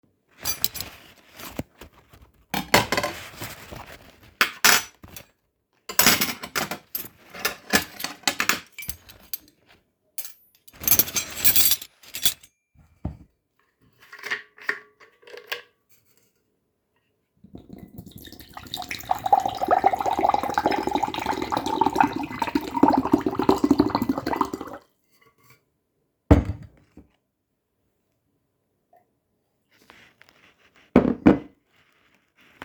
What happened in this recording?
I put my plate and utensils on the table getting ready for dinner. After putting them down I poured myself a glass of water